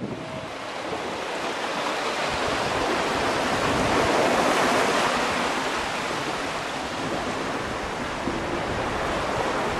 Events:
[0.00, 9.75] sailing ship
[0.00, 9.75] surf

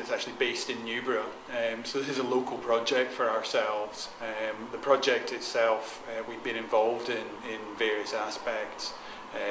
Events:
[0.00, 1.29] male speech
[0.00, 9.50] mechanisms
[1.45, 5.79] male speech
[5.80, 5.98] breathing
[6.04, 8.93] male speech
[9.01, 9.22] breathing

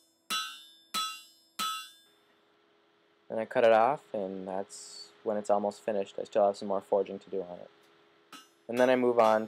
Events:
[0.00, 9.45] background noise
[0.26, 2.13] hammer
[3.24, 3.97] man speaking
[4.12, 5.04] man speaking
[5.21, 7.64] man speaking
[8.26, 9.45] hammer
[8.63, 9.45] man speaking

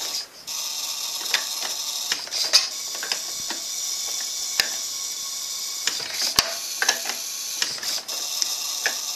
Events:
[0.00, 9.15] background noise
[1.23, 1.65] generic impact sounds
[1.95, 2.15] generic impact sounds
[2.29, 2.58] generic impact sounds
[2.84, 3.15] generic impact sounds
[3.37, 3.70] generic impact sounds
[4.39, 4.83] generic impact sounds
[5.80, 6.51] generic impact sounds
[6.68, 7.17] generic impact sounds
[7.54, 7.97] generic impact sounds
[8.71, 9.03] generic impact sounds

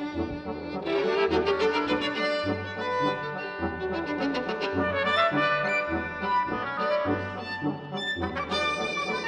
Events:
[0.01, 9.25] music

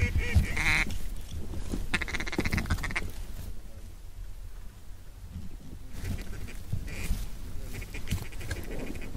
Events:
[0.00, 0.47] generic impact sounds
[0.00, 0.90] duck
[0.00, 9.15] wind
[0.76, 1.09] generic impact sounds
[1.25, 1.40] generic impact sounds
[1.68, 1.80] generic impact sounds
[1.95, 3.06] duck
[2.32, 2.82] generic impact sounds
[2.96, 3.11] generic impact sounds
[3.06, 3.52] surface contact
[3.30, 3.61] generic impact sounds
[3.39, 3.97] human voice
[5.24, 6.00] human voice
[5.31, 5.78] generic impact sounds
[5.97, 6.21] generic impact sounds
[6.00, 6.59] duck
[6.68, 6.88] generic impact sounds
[6.88, 7.17] duck
[7.03, 7.25] generic impact sounds
[7.35, 7.96] human voice
[7.73, 9.15] duck
[7.99, 8.23] generic impact sounds
[8.44, 8.64] generic impact sounds

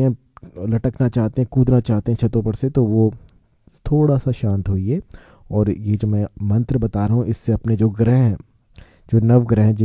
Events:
[0.00, 0.10] man speaking
[0.00, 9.84] background noise
[0.29, 3.23] man speaking
[3.75, 5.10] man speaking
[5.45, 8.41] man speaking
[9.09, 9.84] man speaking

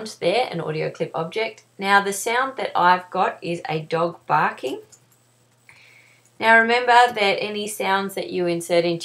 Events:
[0.00, 1.57] woman speaking
[0.00, 9.04] mechanisms
[1.56, 1.63] tick
[1.80, 4.87] woman speaking
[4.93, 5.00] tick
[5.50, 5.60] tick
[5.66, 6.26] breathing
[6.39, 9.04] woman speaking

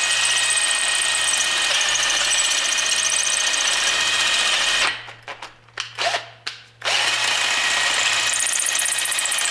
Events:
[0.00, 4.90] drill
[4.89, 6.82] mechanisms
[5.02, 5.12] generic impact sounds
[5.24, 5.46] generic impact sounds
[5.72, 5.83] tick
[5.95, 6.21] drill
[6.42, 6.52] tick
[6.79, 9.50] drill

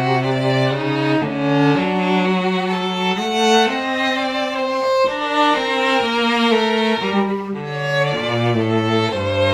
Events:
[0.00, 9.53] music

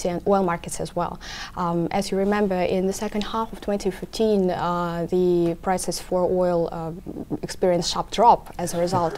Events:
[0.00, 1.15] woman speaking
[1.15, 1.46] breathing
[1.50, 5.53] woman speaking
[2.19, 2.40] surface contact
[3.12, 3.23] clicking
[4.34, 4.41] clicking
[4.57, 4.62] clicking
[5.40, 5.48] generic impact sounds
[5.61, 6.90] woman speaking
[6.91, 7.33] human voice
[7.36, 8.32] woman speaking
[8.43, 9.15] woman speaking
[8.51, 9.15] surface contact
[8.76, 8.95] human voice

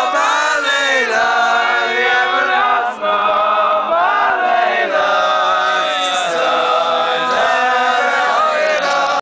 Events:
[0.00, 9.20] choir

